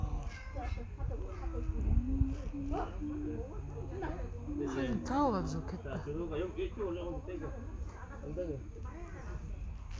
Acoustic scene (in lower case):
park